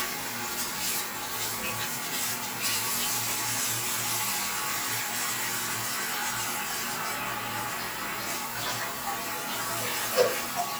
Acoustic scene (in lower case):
restroom